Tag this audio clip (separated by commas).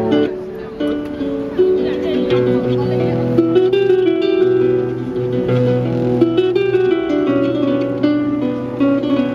Musical instrument, Speech, Harp, Music